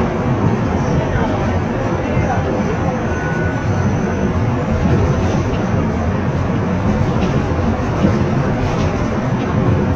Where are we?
on a bus